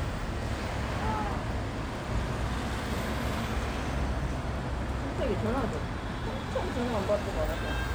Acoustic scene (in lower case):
street